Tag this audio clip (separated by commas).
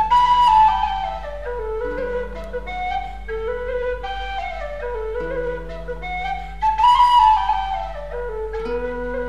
Music, Flute